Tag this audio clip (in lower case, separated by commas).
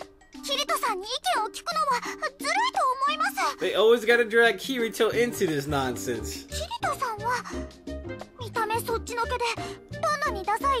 music, inside a large room or hall, speech